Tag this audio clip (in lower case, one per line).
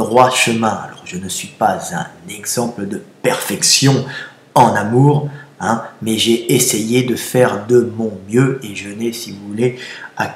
speech